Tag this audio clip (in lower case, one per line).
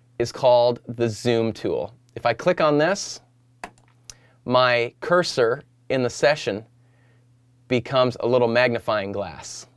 speech